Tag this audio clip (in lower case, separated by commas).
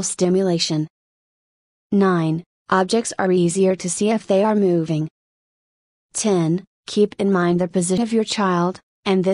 speech